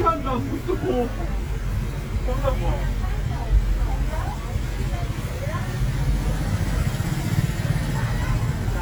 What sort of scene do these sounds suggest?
residential area